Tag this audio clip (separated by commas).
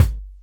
Percussion, Drum, Music, Musical instrument, Bass drum